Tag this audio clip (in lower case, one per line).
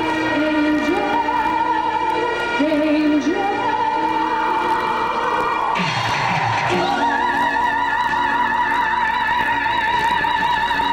music
opera
female singing